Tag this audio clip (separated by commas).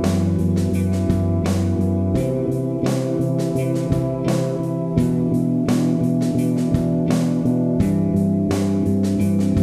Harmonic, Music